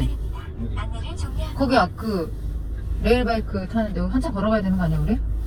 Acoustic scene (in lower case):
car